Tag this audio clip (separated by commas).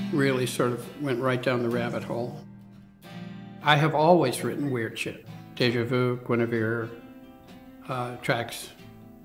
Music, Speech